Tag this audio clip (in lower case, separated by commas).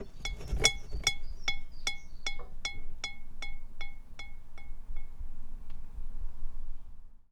clink, glass